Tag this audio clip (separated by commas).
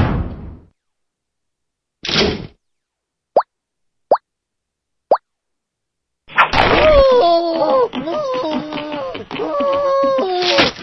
Plop